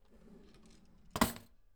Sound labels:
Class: drawer; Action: closing; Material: wooden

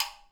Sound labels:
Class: switch; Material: plastic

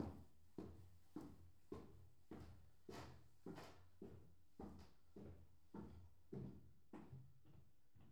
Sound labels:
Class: footsteps; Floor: wooden floor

